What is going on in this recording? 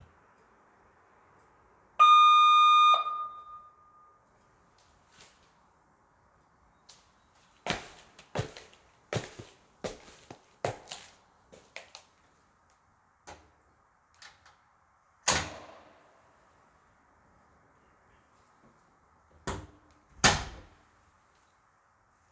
A doorbell rang loudly. I walked to the door while holding my keys and opened it. The bell ringing and footsteps overlapped slightly.